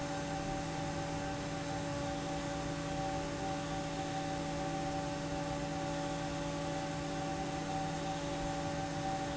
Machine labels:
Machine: fan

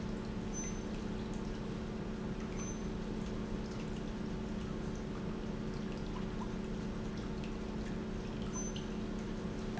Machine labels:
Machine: pump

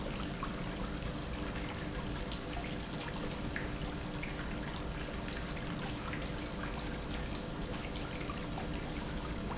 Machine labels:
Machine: pump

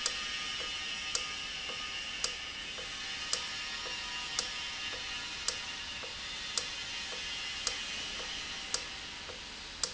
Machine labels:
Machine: valve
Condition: normal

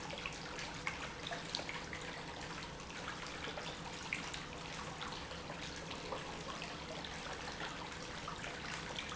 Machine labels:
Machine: pump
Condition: normal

